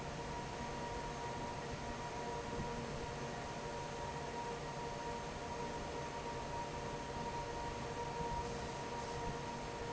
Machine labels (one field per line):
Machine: fan